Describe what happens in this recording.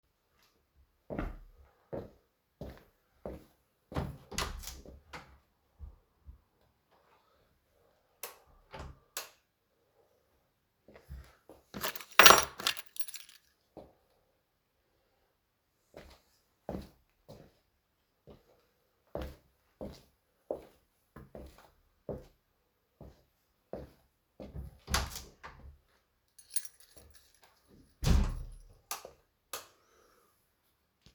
I walked to the door, opened and closed it,turned on the light, shook my keychain and walked back